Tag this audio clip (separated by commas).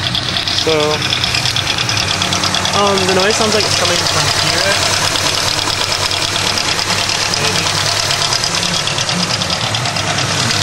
car engine knocking